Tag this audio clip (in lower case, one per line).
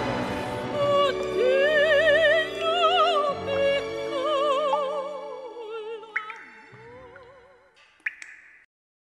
music